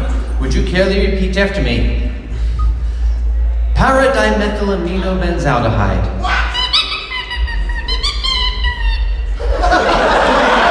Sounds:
speech

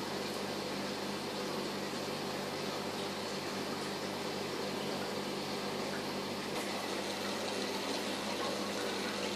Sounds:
inside a small room

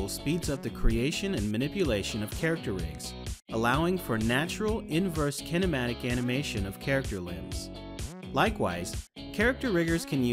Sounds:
speech
music

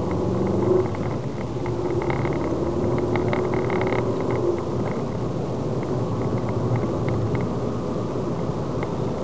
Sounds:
motor vehicle (road)
vehicle
car

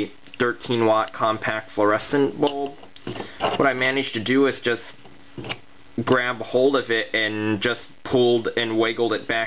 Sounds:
speech

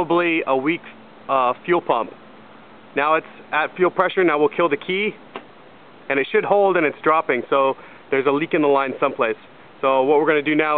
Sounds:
speech

